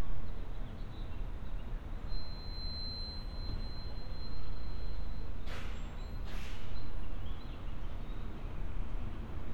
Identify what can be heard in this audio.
background noise